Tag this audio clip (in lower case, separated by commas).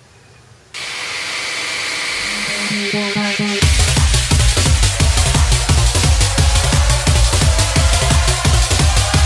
electronic music, music, drum and bass